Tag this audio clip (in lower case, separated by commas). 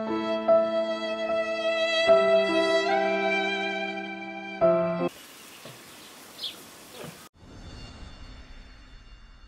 music, environmental noise